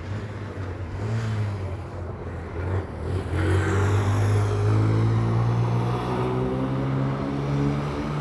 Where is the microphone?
on a street